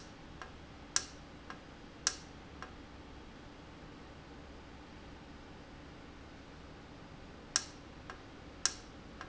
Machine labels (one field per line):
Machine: valve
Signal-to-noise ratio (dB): 6 dB